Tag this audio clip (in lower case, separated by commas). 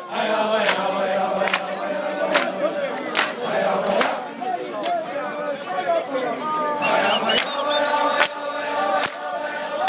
speech, choir